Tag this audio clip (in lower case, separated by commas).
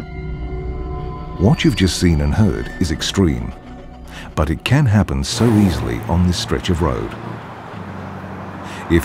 vehicle, car, speech, truck, music, motor vehicle (road)